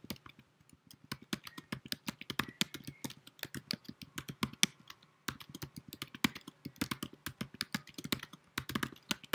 Someone is typing in moderate speed